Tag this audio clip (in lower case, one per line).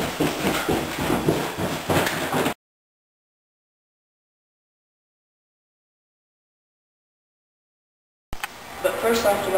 speech